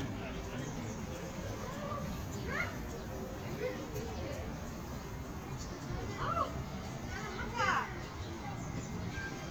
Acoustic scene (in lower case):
park